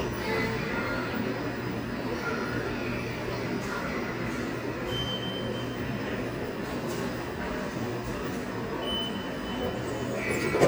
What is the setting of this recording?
subway station